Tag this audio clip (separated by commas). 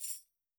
Percussion, Tambourine, Music, Musical instrument